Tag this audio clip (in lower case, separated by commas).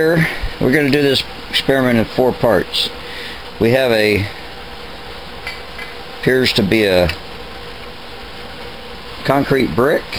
speech